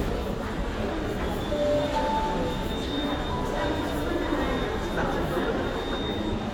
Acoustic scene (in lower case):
crowded indoor space